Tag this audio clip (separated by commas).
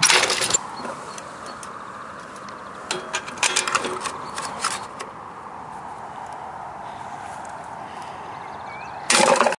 Bird